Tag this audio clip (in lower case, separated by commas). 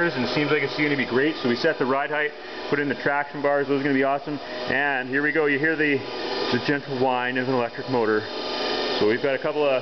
vehicle, speech, engine